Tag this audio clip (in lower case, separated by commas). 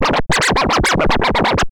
music, scratching (performance technique), musical instrument